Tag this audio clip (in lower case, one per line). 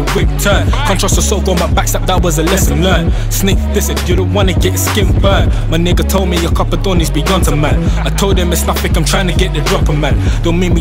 music